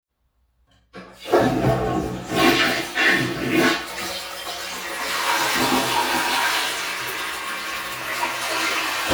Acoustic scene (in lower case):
restroom